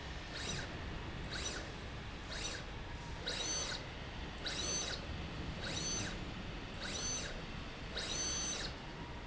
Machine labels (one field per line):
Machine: slide rail